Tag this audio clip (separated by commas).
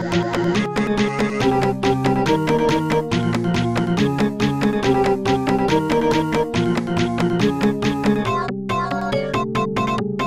Music